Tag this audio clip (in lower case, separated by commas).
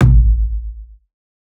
bass drum, drum, music, percussion, musical instrument